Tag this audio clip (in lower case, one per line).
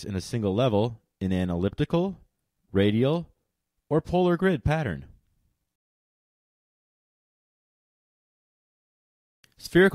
speech